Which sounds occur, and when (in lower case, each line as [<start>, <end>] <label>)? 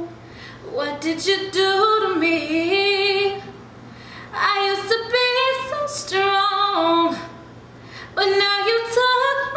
[0.00, 0.19] female singing
[0.00, 9.55] mechanisms
[0.22, 0.65] breathing
[0.58, 3.57] female singing
[3.83, 4.25] breathing
[4.27, 7.24] female singing
[7.07, 7.28] breathing
[7.79, 8.07] breathing
[8.11, 9.55] female singing